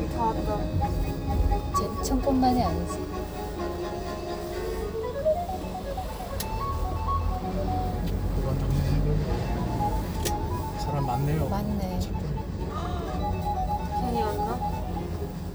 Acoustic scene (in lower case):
car